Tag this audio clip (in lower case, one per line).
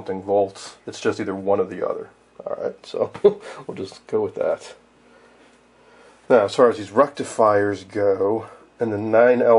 inside a small room
speech